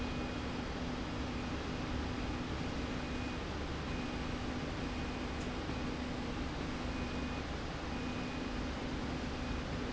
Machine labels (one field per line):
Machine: slide rail